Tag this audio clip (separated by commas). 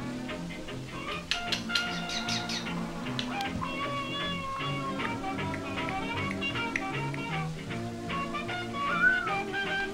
Bird, Domestic animals, Music